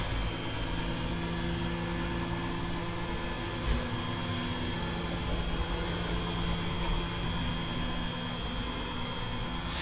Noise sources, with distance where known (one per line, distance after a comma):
large-sounding engine